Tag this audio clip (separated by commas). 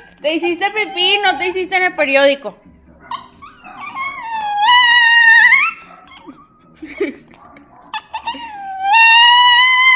Dog, Speech, Animal